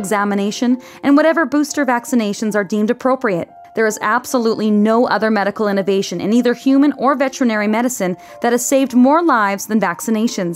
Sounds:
Music, Speech

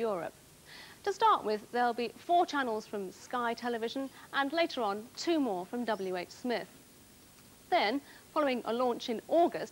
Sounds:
Speech

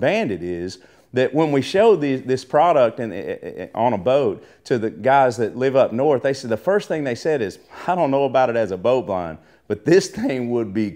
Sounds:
Speech

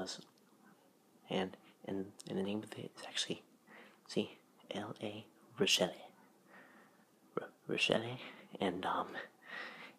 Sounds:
Speech

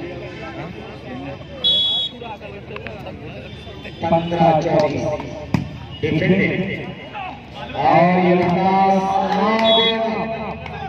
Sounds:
playing volleyball

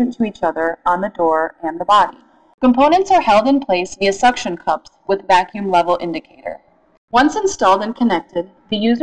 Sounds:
Speech

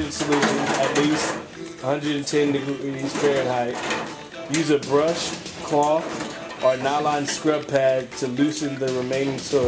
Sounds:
dishes, pots and pans

